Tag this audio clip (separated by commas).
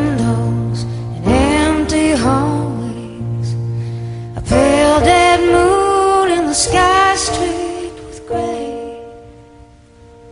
Music